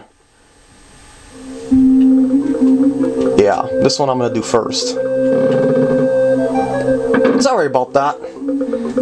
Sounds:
Speech, inside a small room, Music

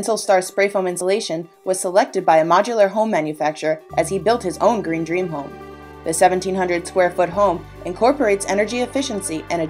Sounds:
Music, Speech

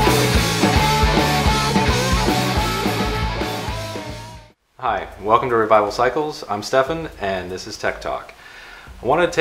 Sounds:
Speech, Music

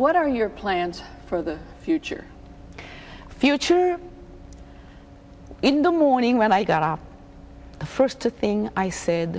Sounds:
Speech

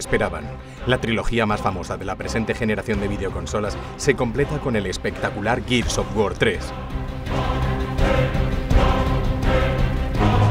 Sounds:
Speech, Music

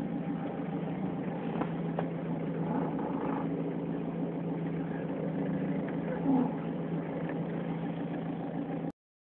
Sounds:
Mechanisms

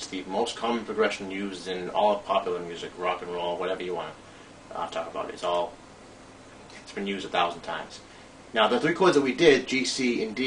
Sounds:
Speech

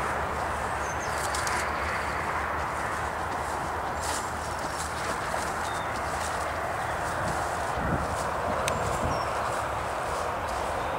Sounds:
Walk

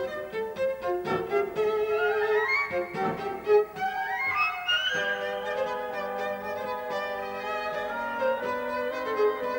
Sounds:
Bowed string instrument, playing cello, Cello

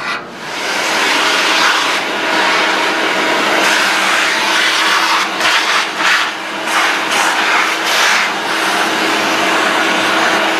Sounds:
Power tool

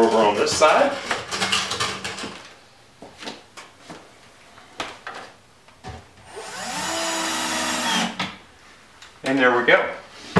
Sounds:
Speech

